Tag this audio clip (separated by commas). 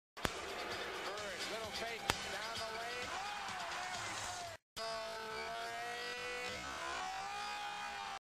Speech